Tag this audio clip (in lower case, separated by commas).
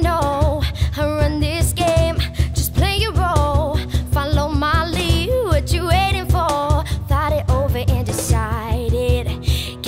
music